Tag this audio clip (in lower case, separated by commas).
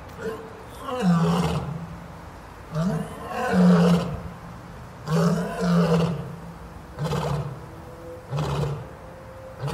lions roaring